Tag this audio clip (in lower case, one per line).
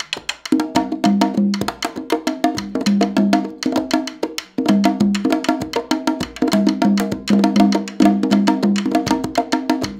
playing congas